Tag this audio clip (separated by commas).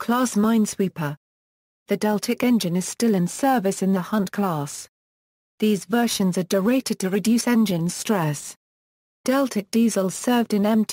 Speech